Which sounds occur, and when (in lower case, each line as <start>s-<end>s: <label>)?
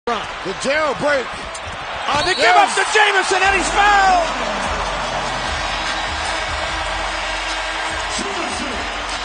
0.0s-9.2s: crowd
0.1s-0.3s: male speech
0.2s-0.4s: generic impact sounds
0.4s-1.3s: male speech
0.9s-1.5s: generic impact sounds
1.6s-2.0s: generic impact sounds
2.0s-4.3s: male speech
2.0s-2.3s: basketball bounce
2.0s-2.5s: whistle
4.5s-9.2s: music
8.0s-8.8s: male speech